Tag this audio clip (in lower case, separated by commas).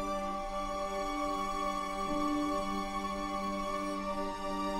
music